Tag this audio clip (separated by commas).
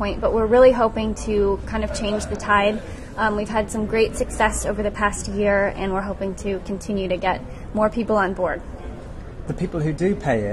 Speech